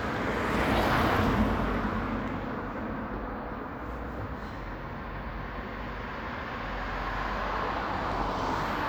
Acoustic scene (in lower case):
residential area